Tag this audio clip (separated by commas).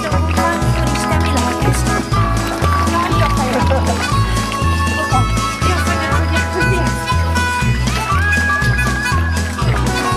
Speech, Music